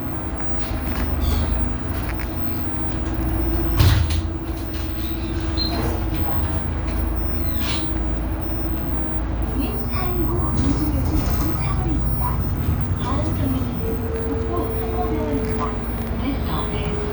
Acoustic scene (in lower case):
bus